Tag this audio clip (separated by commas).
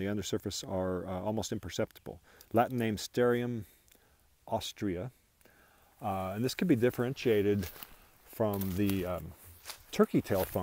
Speech